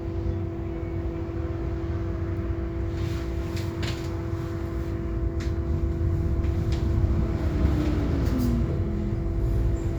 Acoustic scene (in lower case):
bus